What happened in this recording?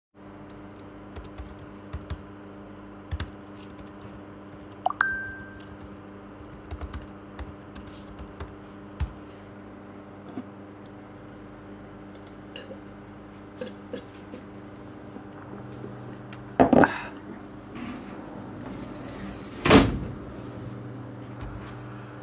First I'm typing on my keyboard while I recieve a phone notification. Then I take a sip of water from my glass (slurping noise). Finally I close my sliding window. Aircon noise audible in background.